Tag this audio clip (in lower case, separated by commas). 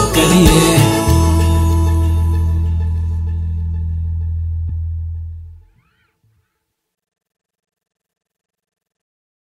music